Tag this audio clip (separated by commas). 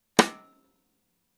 Drum, Snare drum, Musical instrument, Percussion, Music